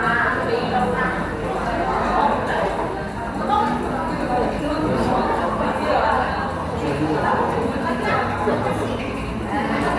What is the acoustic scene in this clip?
cafe